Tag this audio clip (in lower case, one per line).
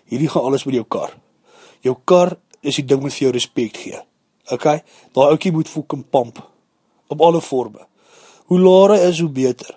speech